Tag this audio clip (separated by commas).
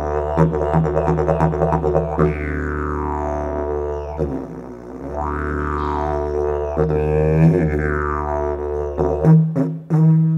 Music, Didgeridoo